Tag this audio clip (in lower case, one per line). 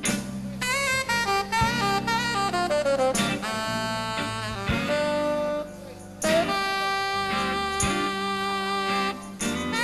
playing saxophone
saxophone
brass instrument